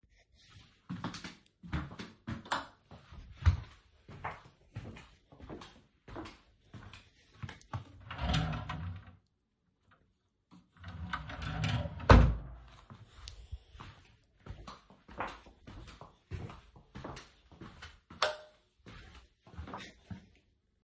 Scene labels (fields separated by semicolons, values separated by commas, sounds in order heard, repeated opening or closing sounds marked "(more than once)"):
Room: living room; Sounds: footsteps, light switch, wardrobe or drawer (more than once)